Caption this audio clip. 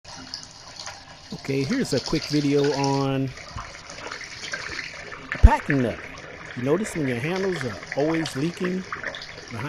Water flows as a friendly adult male speaks